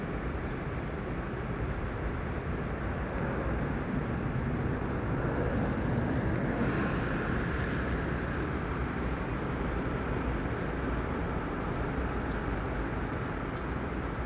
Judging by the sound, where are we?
on a street